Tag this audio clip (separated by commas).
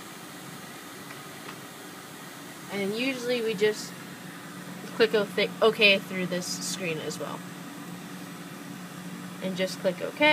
Speech, inside a small room